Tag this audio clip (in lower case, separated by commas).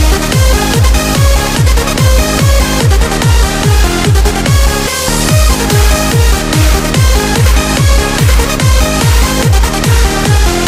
dance music, music